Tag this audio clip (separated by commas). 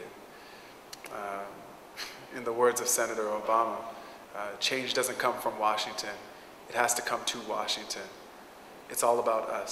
monologue, man speaking, Speech